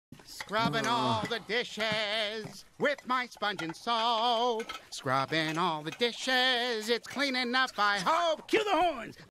A man sings, dishes clink, the man speaks startled